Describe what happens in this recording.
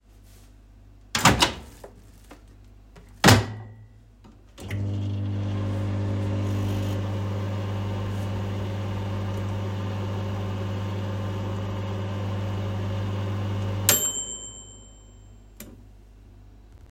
The phone was kept still in the kitchen while I walked to the microwave, used it briefly, and stepped away again.